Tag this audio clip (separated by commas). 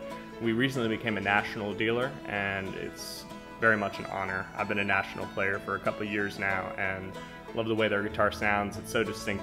Speech, Music, Guitar, Musical instrument